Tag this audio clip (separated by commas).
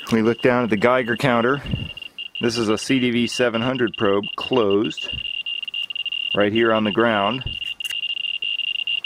Speech